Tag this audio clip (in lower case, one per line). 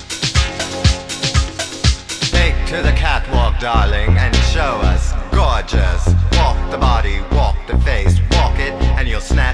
music
speech